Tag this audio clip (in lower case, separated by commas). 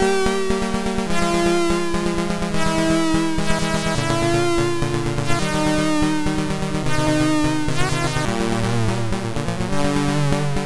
music